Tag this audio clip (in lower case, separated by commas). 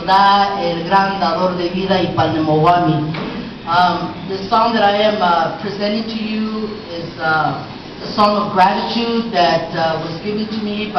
speech